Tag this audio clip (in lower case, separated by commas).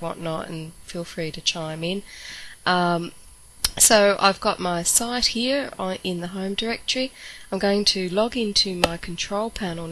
speech